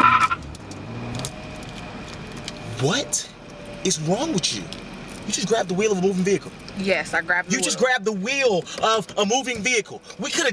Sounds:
speech, car, vehicle

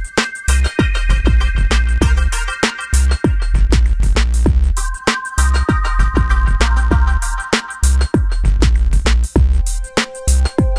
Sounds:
background music, music

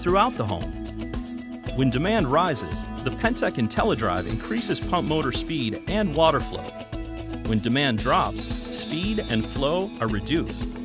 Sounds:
speech, music

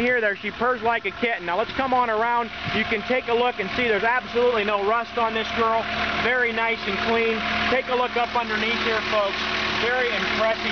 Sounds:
vehicle, speech, truck

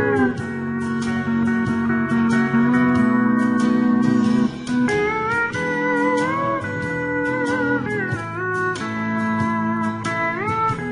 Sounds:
music, slide guitar

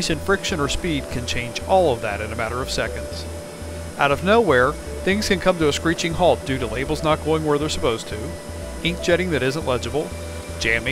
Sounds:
speech, music

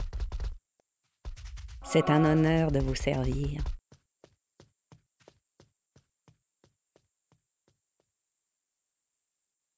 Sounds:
speech

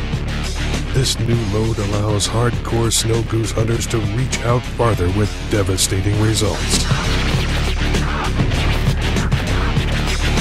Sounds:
speech, music

